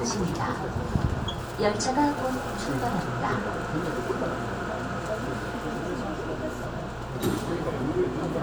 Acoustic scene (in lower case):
subway train